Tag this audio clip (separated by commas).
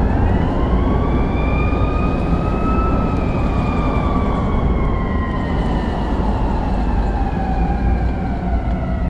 Police car (siren), Emergency vehicle, Siren